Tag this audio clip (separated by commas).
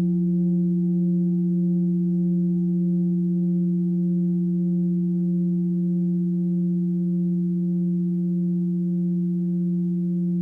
singing bowl